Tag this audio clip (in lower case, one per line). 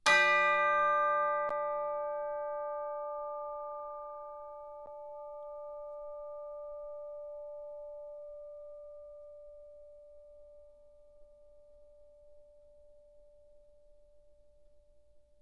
bell